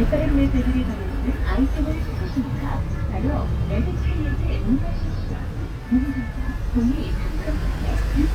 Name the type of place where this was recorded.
bus